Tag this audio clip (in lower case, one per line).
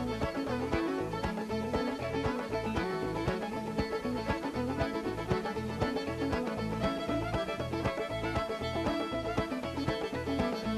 music